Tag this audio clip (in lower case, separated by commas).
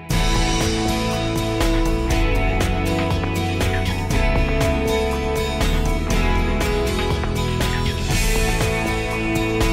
music